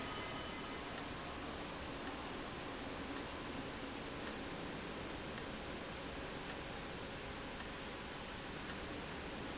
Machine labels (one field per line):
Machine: valve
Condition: abnormal